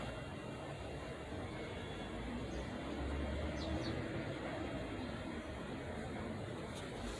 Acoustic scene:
residential area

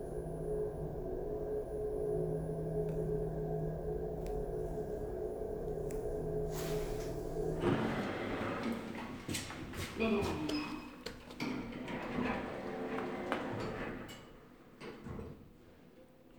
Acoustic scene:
elevator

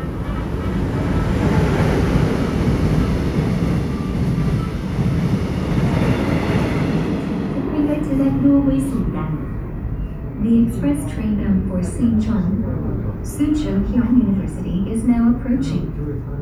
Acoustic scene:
subway station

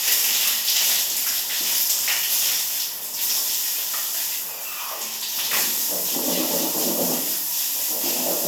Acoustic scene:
restroom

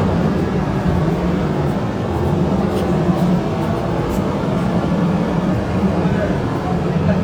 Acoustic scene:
subway station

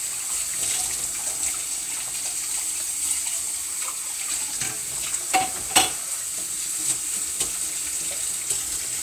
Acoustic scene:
kitchen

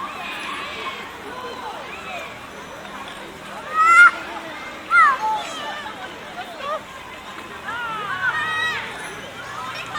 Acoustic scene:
park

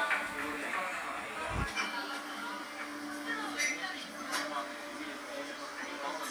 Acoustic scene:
cafe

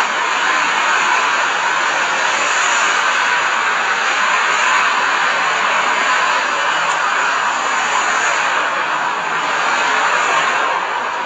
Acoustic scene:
street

